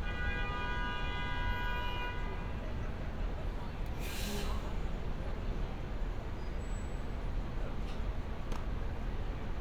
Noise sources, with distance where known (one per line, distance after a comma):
large-sounding engine, near
car horn